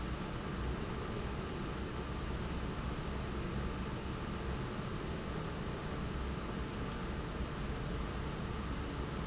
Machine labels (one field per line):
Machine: fan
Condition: normal